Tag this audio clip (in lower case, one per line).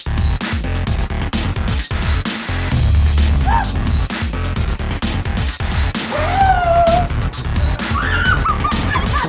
music